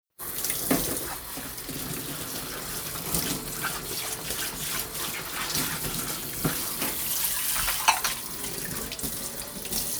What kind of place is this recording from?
kitchen